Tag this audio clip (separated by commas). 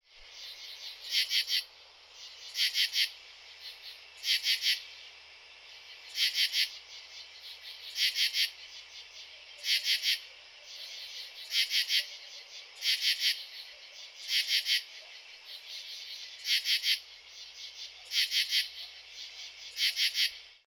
Wild animals, Animal, Insect